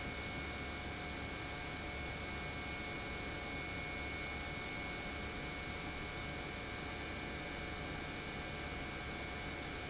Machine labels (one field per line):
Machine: pump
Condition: normal